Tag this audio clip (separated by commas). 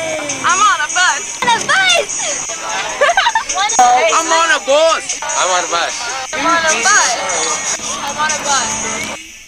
Speech, Bus, Music